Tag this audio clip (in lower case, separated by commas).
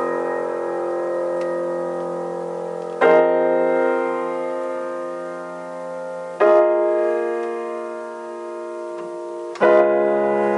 music, piano